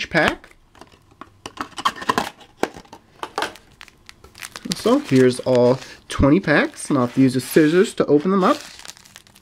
A person is speaking and crinkling something